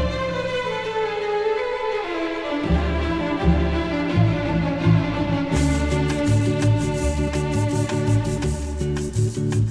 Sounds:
orchestra
music

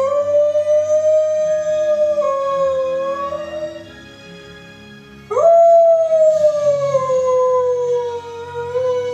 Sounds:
dog howling

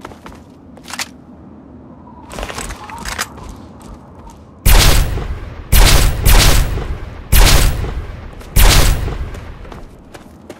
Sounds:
outside, rural or natural

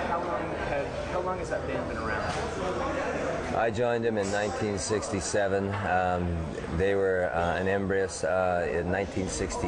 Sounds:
speech

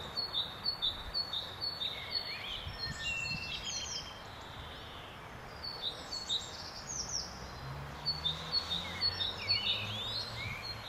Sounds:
bird song

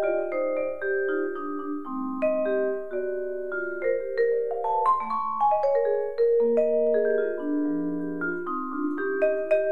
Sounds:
playing vibraphone

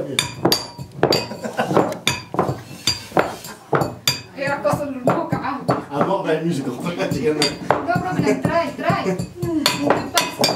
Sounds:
speech

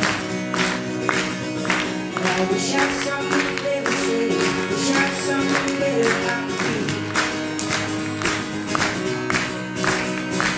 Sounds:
music

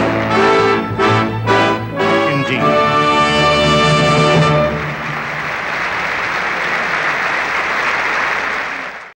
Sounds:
male speech
speech
music

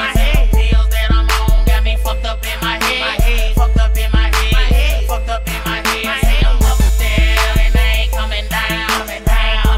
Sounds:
music

